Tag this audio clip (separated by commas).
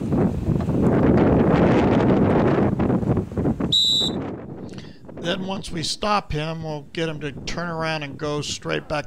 Speech